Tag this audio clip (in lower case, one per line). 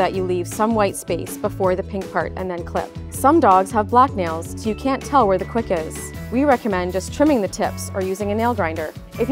music
speech